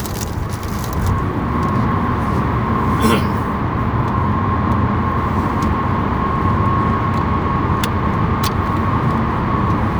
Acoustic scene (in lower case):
car